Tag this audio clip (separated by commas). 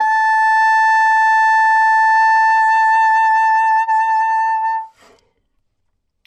Wind instrument, Musical instrument, Music